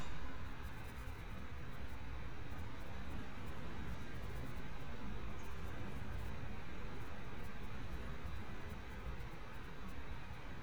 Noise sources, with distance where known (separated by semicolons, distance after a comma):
large-sounding engine, far